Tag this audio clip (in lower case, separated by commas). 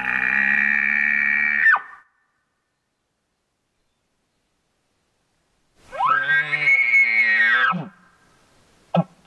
elk bugling